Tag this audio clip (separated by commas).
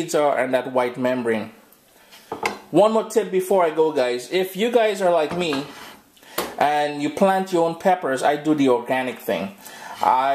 Cutlery, dishes, pots and pans